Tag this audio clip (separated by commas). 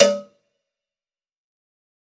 Bell, Cowbell